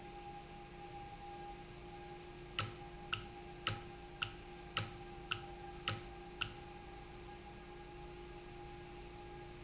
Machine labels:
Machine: valve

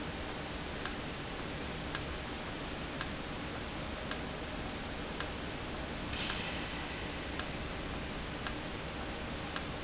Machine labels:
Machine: valve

